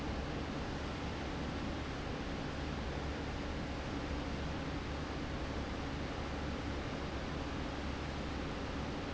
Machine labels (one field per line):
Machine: fan